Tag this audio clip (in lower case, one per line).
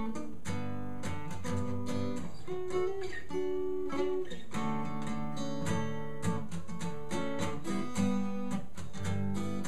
music
plucked string instrument
musical instrument
acoustic guitar
guitar